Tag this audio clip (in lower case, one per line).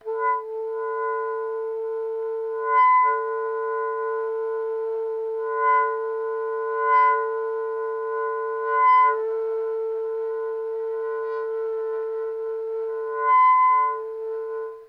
musical instrument
wind instrument
music